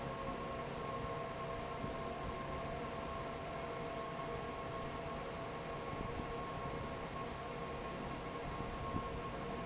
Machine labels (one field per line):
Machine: fan